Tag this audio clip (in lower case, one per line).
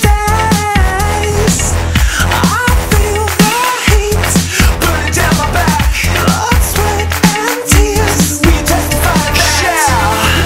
music